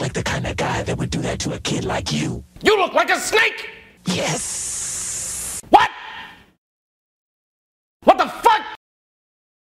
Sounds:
speech

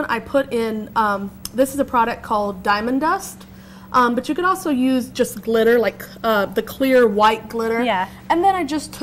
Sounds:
speech

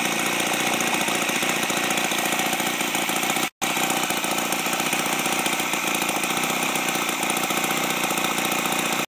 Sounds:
idling, engine, medium engine (mid frequency)

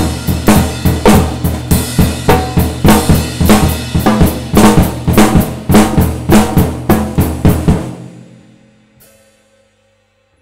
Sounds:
playing cymbal, hi-hat, cymbal

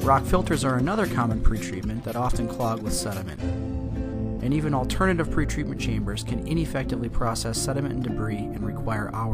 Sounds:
music, speech

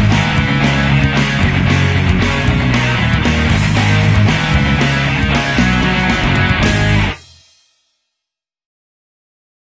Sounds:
music

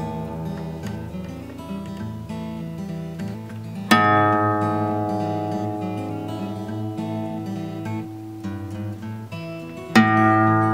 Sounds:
music, electronic tuner

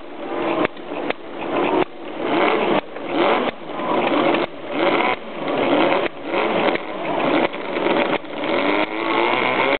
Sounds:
engine

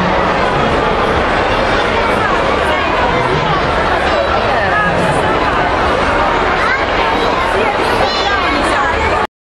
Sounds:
speech

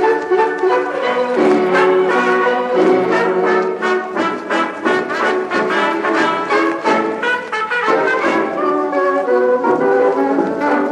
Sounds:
orchestra, music

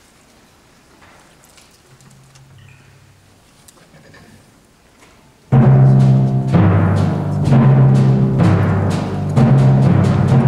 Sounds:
timpani, musical instrument, music

